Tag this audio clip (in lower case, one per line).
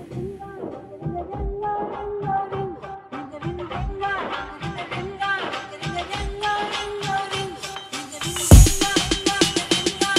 music